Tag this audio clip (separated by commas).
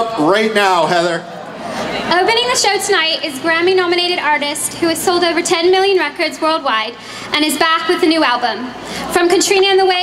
Speech